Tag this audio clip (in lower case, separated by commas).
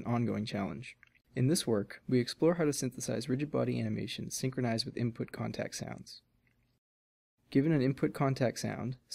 speech